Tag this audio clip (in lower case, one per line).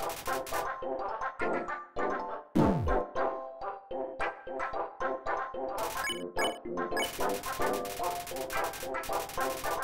music